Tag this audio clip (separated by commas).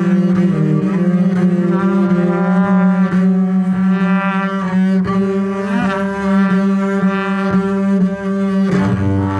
playing cello, Double bass, Bowed string instrument, Cello